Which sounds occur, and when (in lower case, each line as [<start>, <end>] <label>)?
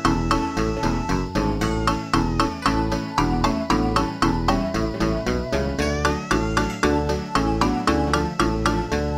[0.01, 9.15] music